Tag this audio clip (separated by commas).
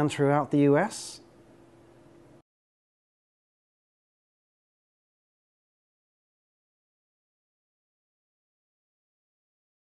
Speech